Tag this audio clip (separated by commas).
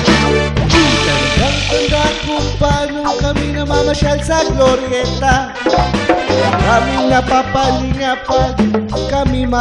Music